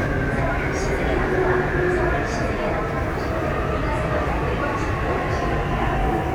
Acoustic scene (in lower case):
subway train